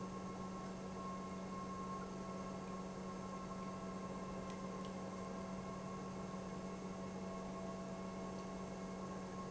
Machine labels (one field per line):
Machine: pump